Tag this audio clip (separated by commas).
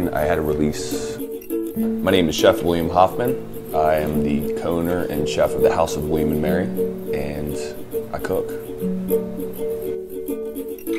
Speech, Music